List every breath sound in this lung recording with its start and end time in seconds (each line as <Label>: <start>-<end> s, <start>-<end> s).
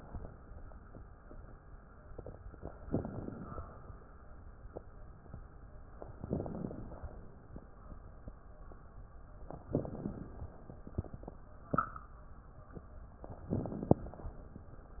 Inhalation: 2.87-3.61 s, 6.24-6.98 s, 9.70-10.44 s, 13.53-14.27 s
Crackles: 2.87-3.61 s, 6.24-6.98 s, 9.70-10.44 s, 13.53-14.27 s